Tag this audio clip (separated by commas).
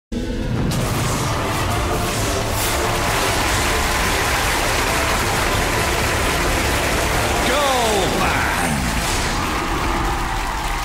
Music, Rain on surface, Speech